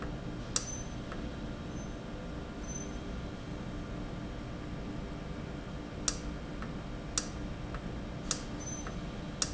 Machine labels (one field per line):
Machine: valve